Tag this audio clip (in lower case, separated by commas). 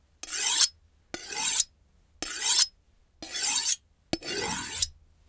home sounds, silverware